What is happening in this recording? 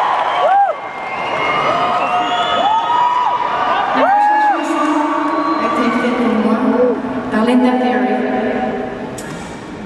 Crowd cheering and shouting then a female voice heard